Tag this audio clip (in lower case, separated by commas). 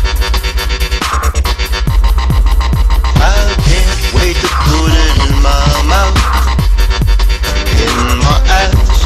dubstep, music, electronic music